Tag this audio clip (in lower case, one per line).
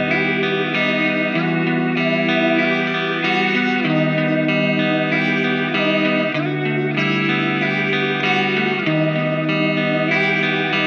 music
guitar
musical instrument
electric guitar
plucked string instrument
strum
acoustic guitar